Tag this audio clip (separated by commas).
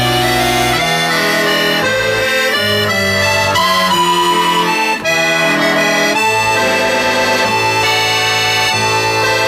playing accordion